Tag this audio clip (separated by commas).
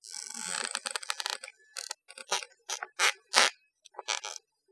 Squeak